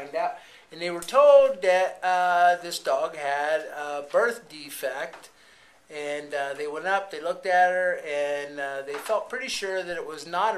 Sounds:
speech

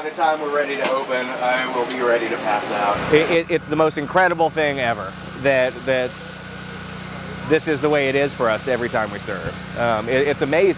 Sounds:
speech

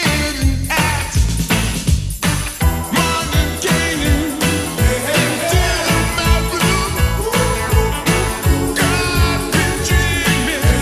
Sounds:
soul music, singing

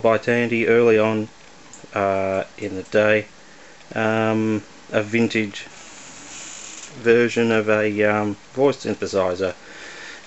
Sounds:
speech

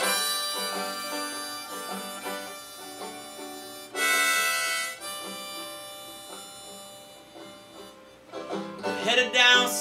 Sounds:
woodwind instrument, harmonica

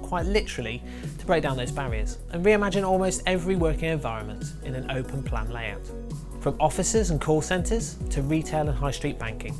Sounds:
speech, music

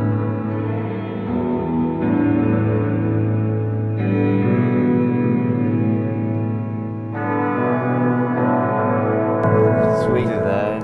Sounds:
reverberation, musical instrument, guitar, music, plucked string instrument

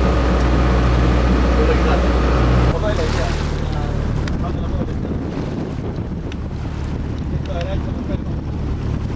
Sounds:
outside, rural or natural, ship, boat, speech, vehicle

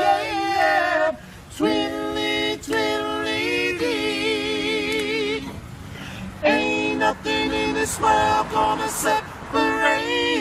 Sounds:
choir, male singing

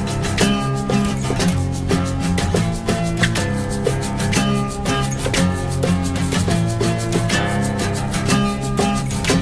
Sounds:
exciting music, music

